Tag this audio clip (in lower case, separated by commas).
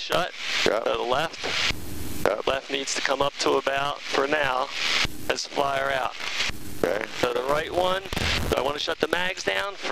speech